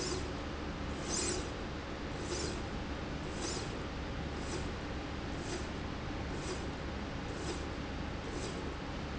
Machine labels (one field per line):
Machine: slide rail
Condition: normal